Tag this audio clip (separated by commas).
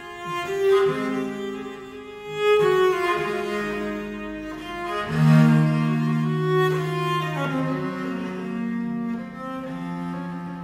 Bowed string instrument, Cello, Musical instrument, Music, Plucked string instrument